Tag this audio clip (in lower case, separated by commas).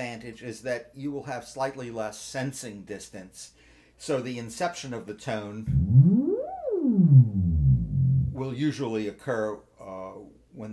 playing theremin